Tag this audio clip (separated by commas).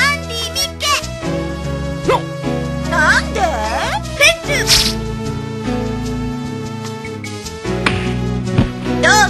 Speech, Music